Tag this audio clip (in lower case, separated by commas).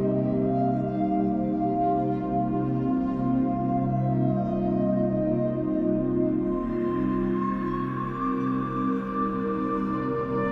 music, ambient music